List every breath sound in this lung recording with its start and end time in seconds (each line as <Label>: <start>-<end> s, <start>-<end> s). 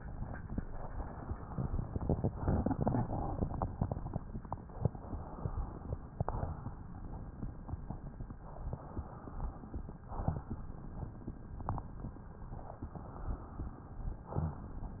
Inhalation: 0.64-2.29 s, 4.79-6.18 s, 8.43-9.83 s, 12.52-14.19 s
Exhalation: 2.34-3.98 s, 6.20-7.03 s, 9.92-10.75 s, 14.20-15.00 s